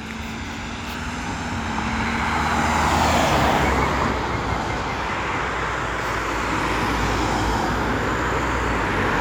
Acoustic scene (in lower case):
street